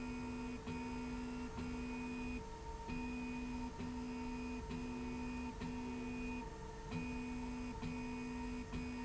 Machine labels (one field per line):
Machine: slide rail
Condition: normal